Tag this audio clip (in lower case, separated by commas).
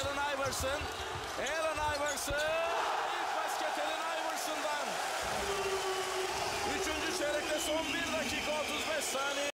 speech